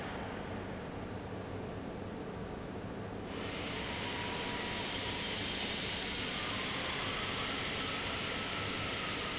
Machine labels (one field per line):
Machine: fan